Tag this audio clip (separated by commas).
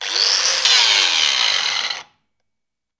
Tools